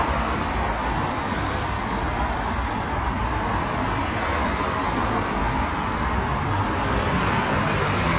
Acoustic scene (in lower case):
street